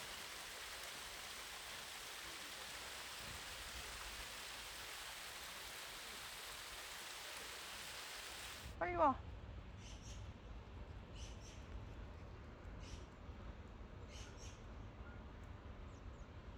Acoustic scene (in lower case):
park